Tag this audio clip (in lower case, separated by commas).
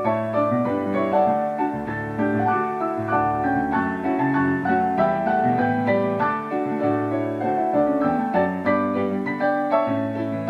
piano, music